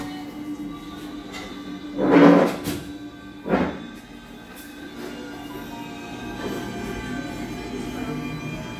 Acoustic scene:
cafe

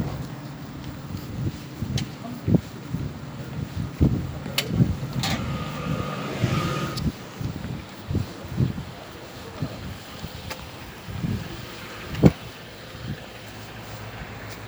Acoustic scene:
residential area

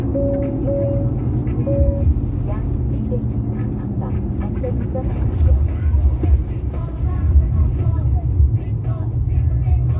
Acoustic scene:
car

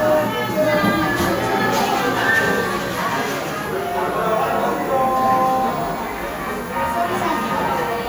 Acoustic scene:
cafe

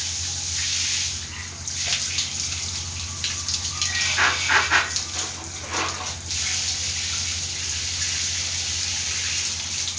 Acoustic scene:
restroom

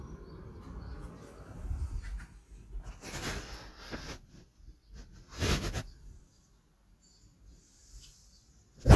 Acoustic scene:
park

